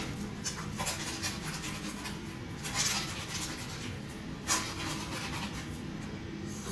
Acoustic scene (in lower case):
restroom